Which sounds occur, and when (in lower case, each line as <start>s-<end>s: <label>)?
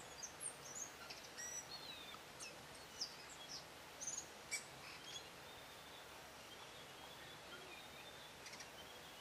0.0s-0.5s: bird call
0.0s-9.2s: wind
0.6s-2.1s: bird call
2.2s-2.5s: bird call
2.7s-3.7s: bird call
3.9s-4.3s: bird call
4.4s-5.3s: bird call
5.4s-6.1s: bird call
6.4s-9.2s: bird call